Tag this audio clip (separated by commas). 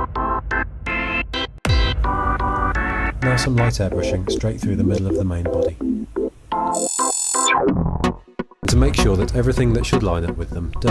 Speech, Music